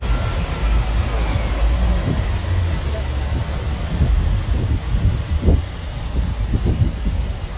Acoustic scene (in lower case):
street